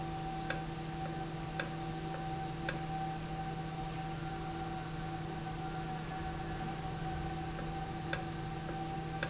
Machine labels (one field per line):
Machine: valve